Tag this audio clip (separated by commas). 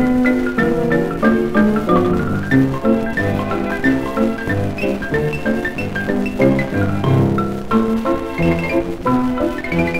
Music